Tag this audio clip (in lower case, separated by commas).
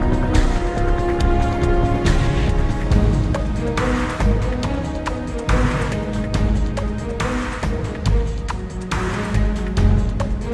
music, exciting music